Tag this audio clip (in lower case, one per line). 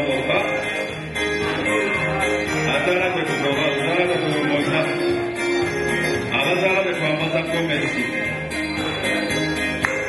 speech
music